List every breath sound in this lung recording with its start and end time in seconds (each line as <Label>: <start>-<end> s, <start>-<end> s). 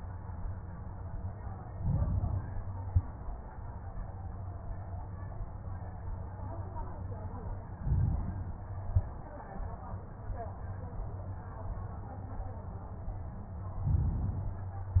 Inhalation: 1.67-2.62 s, 7.77-8.74 s, 13.83-15.00 s
Exhalation: 2.62-3.31 s, 8.74-9.38 s